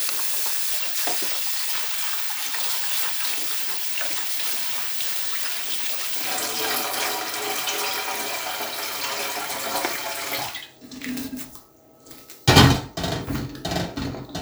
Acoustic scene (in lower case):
kitchen